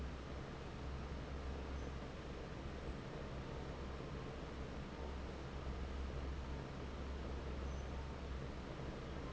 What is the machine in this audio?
fan